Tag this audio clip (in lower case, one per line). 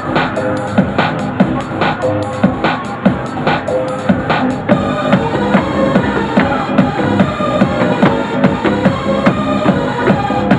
music